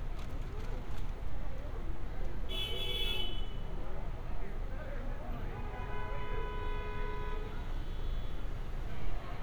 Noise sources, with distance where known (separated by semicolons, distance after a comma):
car horn, near